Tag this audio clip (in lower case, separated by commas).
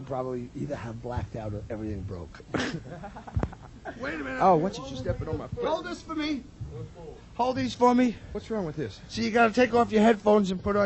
speech